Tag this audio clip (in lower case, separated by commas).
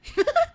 human voice, giggle, laughter